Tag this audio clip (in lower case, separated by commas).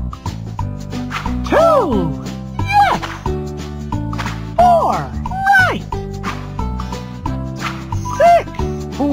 music, speech